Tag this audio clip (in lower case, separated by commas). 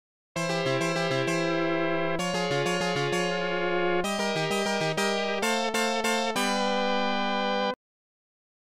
music, funny music